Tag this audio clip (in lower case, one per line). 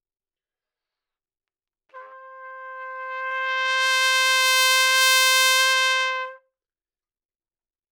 musical instrument
music
trumpet
brass instrument